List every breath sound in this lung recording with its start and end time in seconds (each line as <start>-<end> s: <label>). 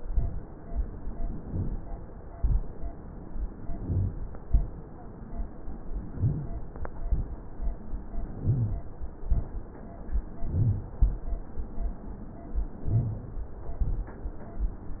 1.44-1.71 s: inhalation
2.30-2.66 s: exhalation
3.70-4.14 s: inhalation
4.41-4.77 s: exhalation
6.08-6.55 s: inhalation
6.97-7.33 s: exhalation
8.38-8.85 s: inhalation
9.21-9.57 s: exhalation
10.47-10.90 s: inhalation
12.86-13.30 s: inhalation
13.78-14.13 s: exhalation